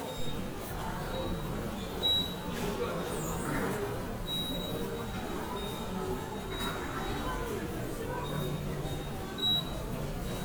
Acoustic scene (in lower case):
subway station